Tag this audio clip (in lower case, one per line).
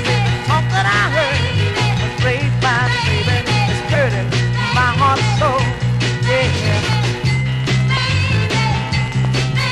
music